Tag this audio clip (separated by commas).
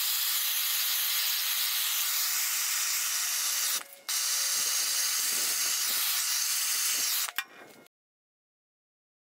inside a large room or hall, Silence